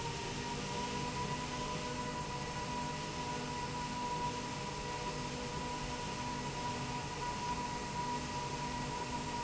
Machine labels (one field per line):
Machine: slide rail